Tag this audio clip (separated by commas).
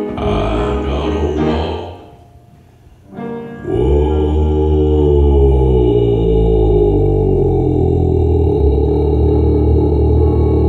Piano, Singing, Music